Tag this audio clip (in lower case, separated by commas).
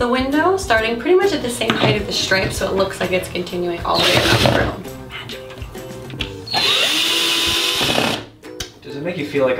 music, inside a small room, speech